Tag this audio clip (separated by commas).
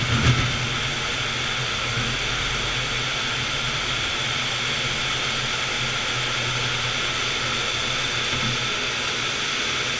Fixed-wing aircraft, Vehicle, Jet engine